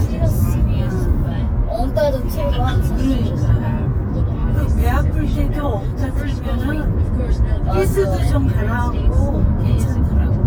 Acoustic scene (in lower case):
car